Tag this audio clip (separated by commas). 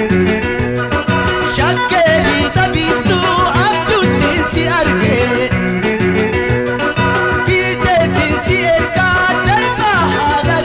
Music